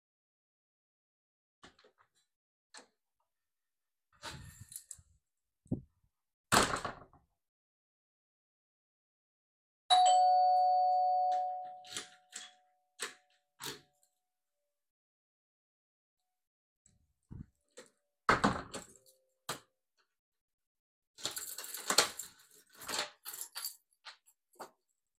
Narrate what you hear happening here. I opened the hallway door, heard the ringbell and opened the door with my key.